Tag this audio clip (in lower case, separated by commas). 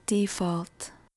speech, human voice, woman speaking